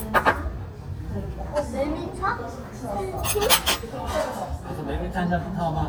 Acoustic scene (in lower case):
restaurant